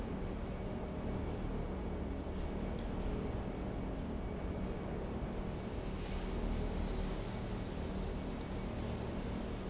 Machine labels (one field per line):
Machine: pump